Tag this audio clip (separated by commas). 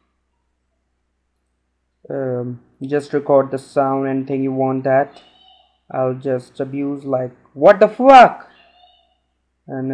Speech